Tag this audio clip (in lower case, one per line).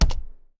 domestic sounds
typing